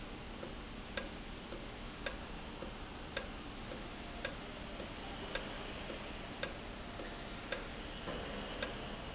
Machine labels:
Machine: valve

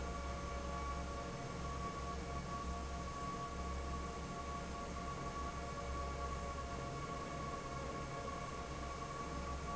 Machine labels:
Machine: fan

